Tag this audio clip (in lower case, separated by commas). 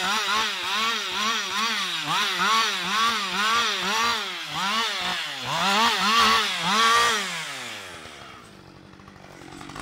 chainsawing trees